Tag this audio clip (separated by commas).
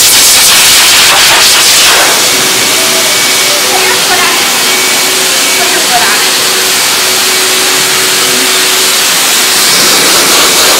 hair dryer drying